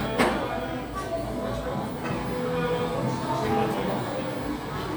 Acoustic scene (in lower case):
cafe